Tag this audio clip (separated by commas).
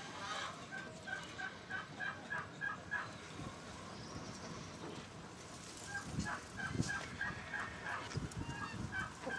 rooster, livestock, Bird